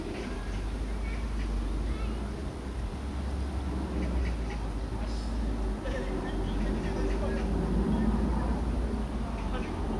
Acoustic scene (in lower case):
park